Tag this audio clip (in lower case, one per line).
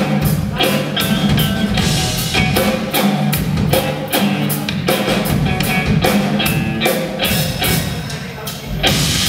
music